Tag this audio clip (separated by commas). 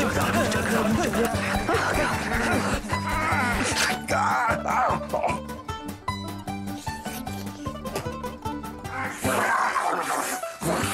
Speech, Music